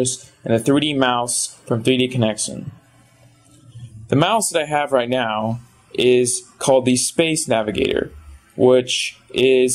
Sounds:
speech

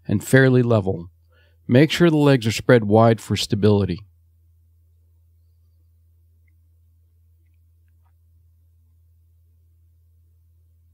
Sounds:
speech

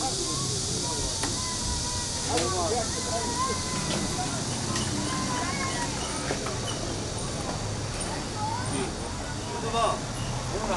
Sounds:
speech

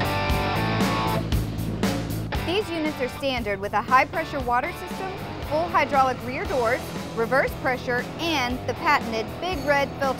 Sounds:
truck, music, vehicle, speech

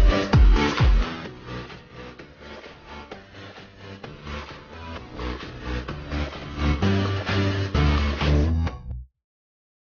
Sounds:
music

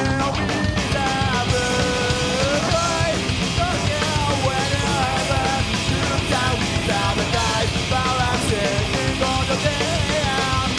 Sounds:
music

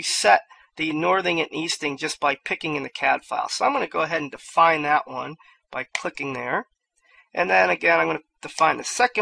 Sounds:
speech

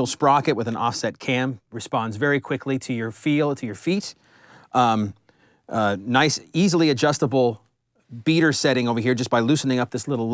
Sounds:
speech

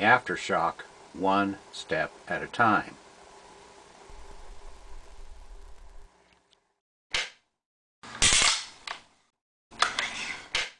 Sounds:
speech

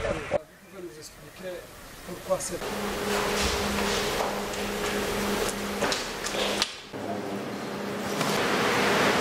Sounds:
outside, urban or man-made, speech

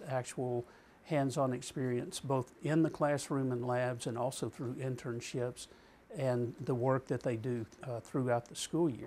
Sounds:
inside a small room, speech

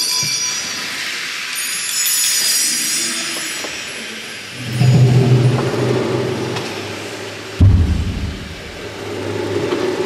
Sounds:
music, percussion, wood block

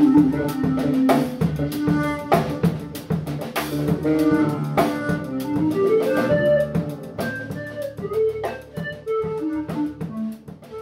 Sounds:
plucked string instrument, music, guitar, bowed string instrument, musical instrument, drum

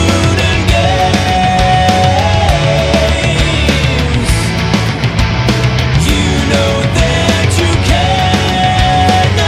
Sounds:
music

